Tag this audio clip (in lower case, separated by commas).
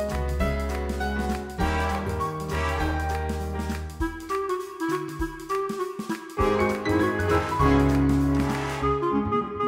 music